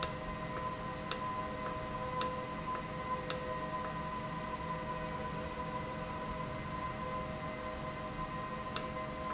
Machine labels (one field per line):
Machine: valve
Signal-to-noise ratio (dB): -6 dB